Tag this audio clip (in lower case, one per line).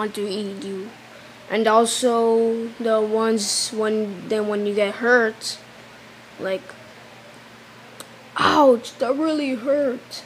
groan
speech